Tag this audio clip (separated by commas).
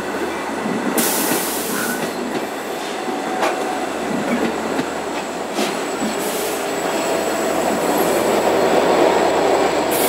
Clickety-clack, train wagon, Rail transport, Train